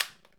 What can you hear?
object falling